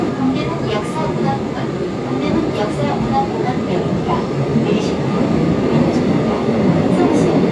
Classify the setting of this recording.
subway train